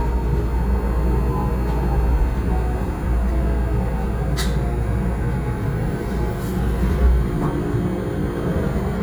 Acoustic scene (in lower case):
subway train